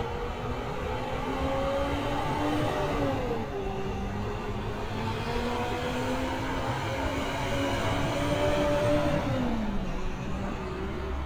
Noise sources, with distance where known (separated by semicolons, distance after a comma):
large-sounding engine, near